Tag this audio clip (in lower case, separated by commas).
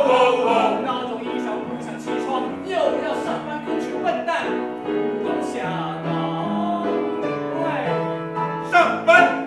singing, music